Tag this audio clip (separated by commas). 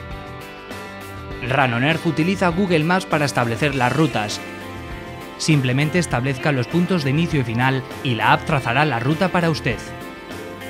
Speech, Music